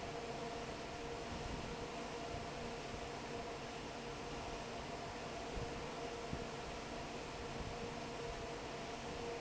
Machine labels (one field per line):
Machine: fan